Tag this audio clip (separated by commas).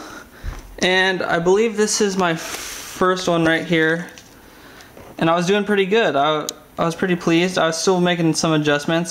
Speech